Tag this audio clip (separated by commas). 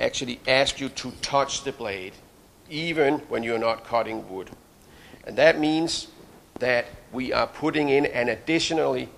Speech